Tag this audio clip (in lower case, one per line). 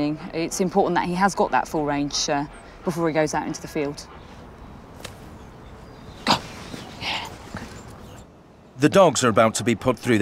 speech